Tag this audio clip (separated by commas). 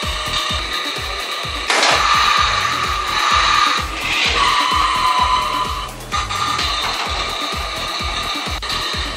Music